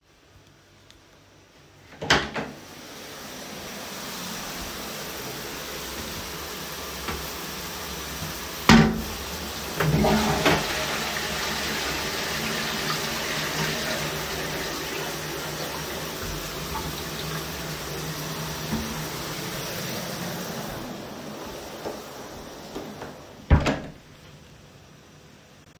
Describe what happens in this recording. I opened the door to the bathroom while the shower was running. I closed the toilet seat flushed it and went out again.